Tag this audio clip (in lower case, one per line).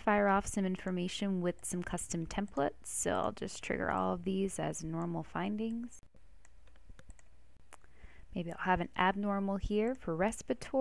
speech